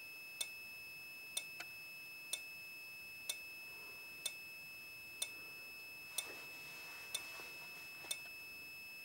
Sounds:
alarm, fire alarm

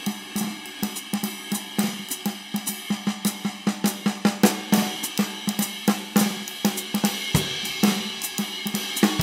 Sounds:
music, drum, bass drum, drum kit, musical instrument

